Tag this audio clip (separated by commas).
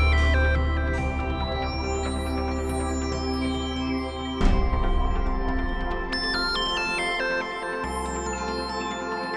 Music